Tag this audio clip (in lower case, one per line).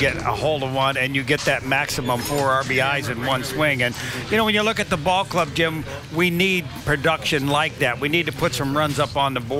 speech